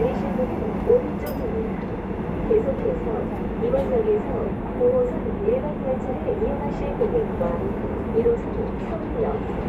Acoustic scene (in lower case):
subway train